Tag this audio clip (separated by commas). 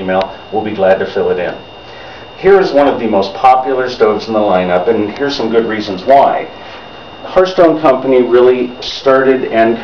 Speech